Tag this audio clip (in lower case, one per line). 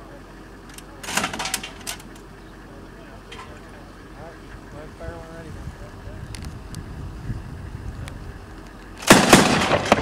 firing cannon